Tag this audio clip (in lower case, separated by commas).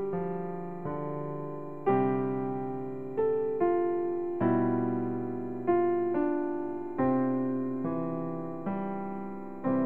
music, piano